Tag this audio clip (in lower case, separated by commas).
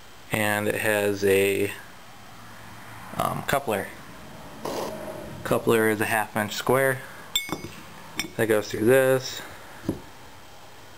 speech